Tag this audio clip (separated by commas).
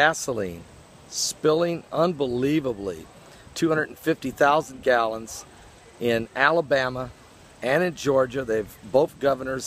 Speech